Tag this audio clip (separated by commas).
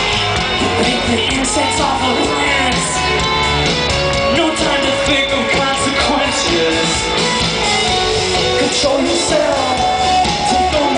Music, Male singing